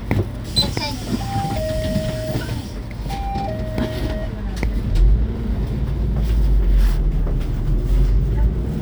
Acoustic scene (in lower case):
bus